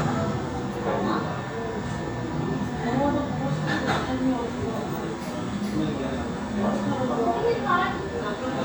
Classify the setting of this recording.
cafe